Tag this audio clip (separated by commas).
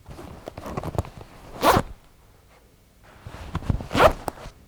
Domestic sounds, Zipper (clothing)